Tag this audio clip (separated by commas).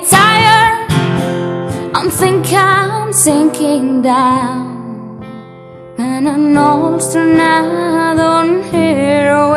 Female singing, Music